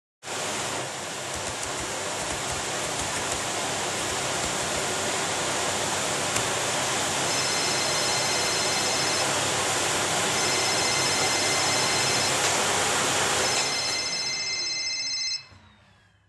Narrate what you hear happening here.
I am working on my computer while someone else is vacuuming. Then the phone rings, the person turns the vaccuum off to pick up the phone.